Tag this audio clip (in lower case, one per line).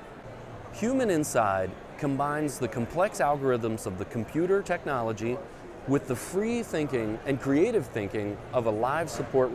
speech